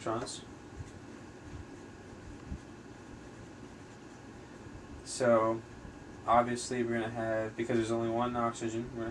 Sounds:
Speech

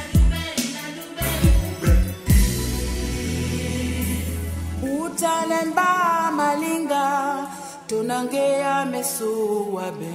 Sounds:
Music

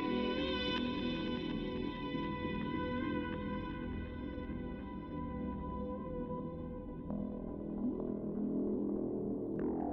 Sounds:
Music

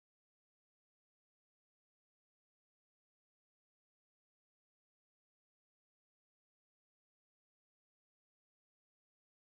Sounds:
Ambient music, Music

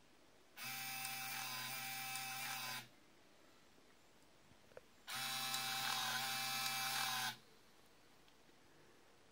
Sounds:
Printer

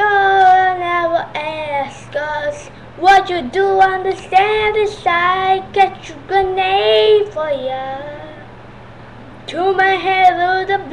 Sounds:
Child singing

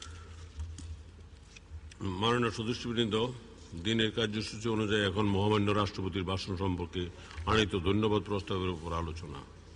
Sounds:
man speaking, Speech, monologue

